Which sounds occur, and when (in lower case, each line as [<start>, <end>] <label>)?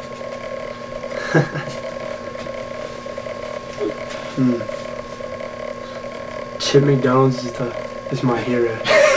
[0.00, 9.15] mechanisms
[3.67, 3.79] generic impact sounds
[4.37, 4.65] human sounds
[8.09, 8.85] man speaking